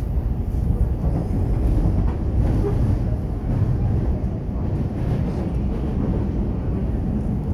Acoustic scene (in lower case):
subway train